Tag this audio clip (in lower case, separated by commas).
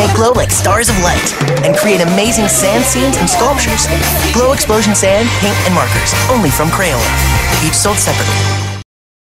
music, speech